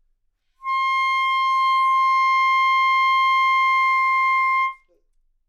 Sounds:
wind instrument, music, musical instrument

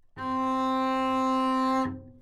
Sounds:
musical instrument, bowed string instrument, music

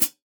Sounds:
musical instrument, music, hi-hat, cymbal, percussion

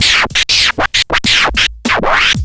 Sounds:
scratching (performance technique), music, musical instrument

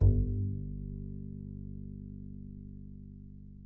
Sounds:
musical instrument, music, bowed string instrument

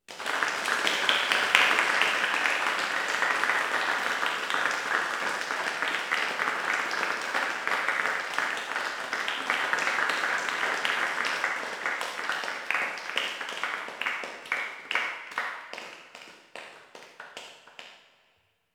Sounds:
applause, human group actions

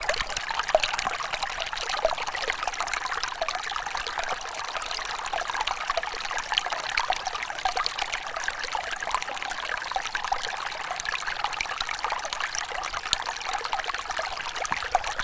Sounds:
stream, water

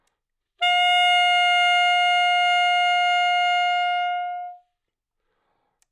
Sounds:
musical instrument, music, wind instrument

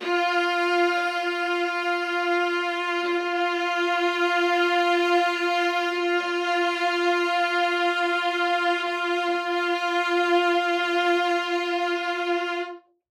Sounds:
music, musical instrument, bowed string instrument

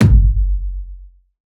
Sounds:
drum, music, musical instrument, bass drum, percussion

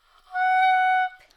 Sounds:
musical instrument, music, woodwind instrument

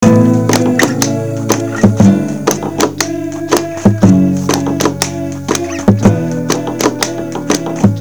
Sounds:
music, acoustic guitar, musical instrument, plucked string instrument, guitar, human voice

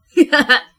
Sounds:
laughter, human voice

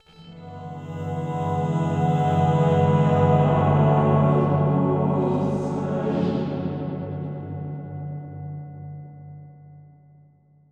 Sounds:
human voice, musical instrument, music, singing

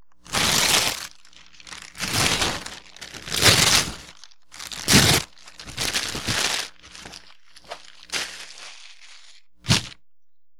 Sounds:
tearing

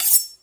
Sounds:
home sounds, cutlery

